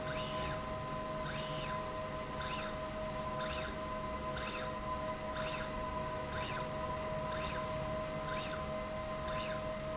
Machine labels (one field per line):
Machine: slide rail